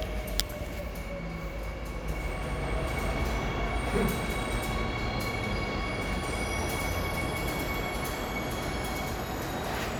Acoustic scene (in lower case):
subway station